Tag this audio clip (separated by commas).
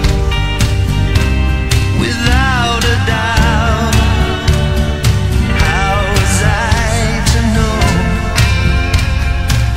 Music